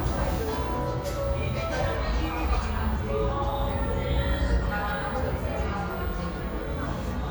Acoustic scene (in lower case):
cafe